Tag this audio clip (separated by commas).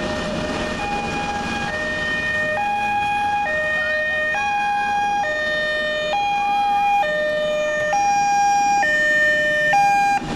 Ambulance (siren), Emergency vehicle, Siren